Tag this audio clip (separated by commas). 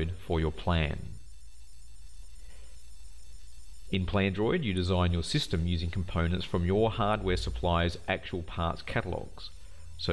Speech